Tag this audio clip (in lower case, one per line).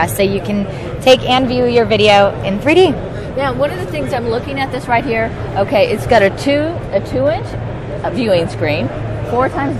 speech